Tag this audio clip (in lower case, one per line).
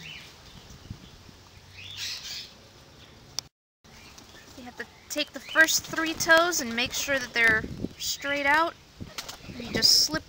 bird
speech